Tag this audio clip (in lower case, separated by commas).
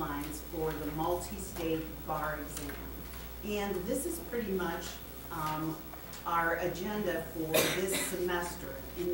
speech